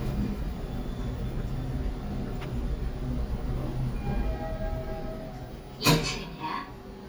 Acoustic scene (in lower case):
elevator